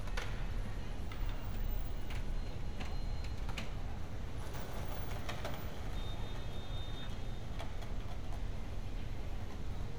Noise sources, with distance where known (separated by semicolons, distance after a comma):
engine of unclear size